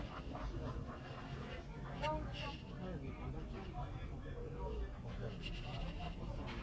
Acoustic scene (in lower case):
crowded indoor space